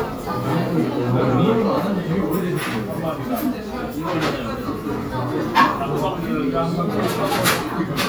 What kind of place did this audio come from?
restaurant